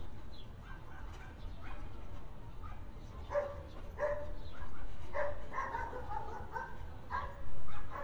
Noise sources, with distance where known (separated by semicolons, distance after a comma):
dog barking or whining